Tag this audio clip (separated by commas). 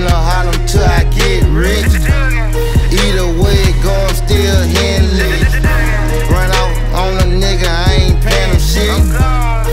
Music